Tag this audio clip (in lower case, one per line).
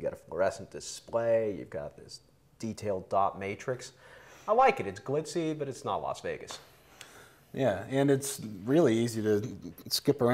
speech